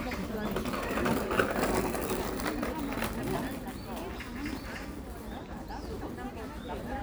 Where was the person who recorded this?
in a park